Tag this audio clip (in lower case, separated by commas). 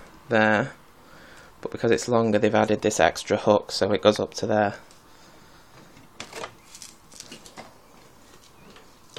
speech, inside a small room